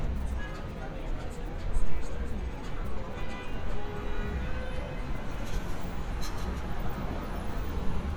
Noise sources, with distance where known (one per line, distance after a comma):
non-machinery impact, near
car horn, far
music from a moving source, far